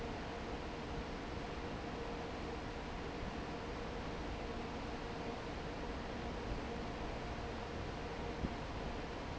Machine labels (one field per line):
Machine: fan